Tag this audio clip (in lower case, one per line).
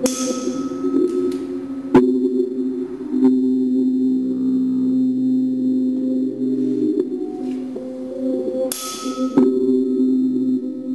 music
musical instrument